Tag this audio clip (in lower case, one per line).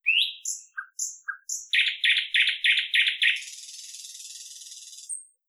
chirp
wild animals
animal
bird
bird vocalization